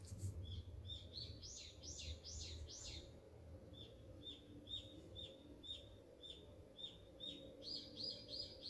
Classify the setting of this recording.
park